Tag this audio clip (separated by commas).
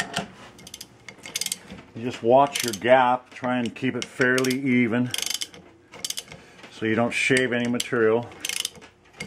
Speech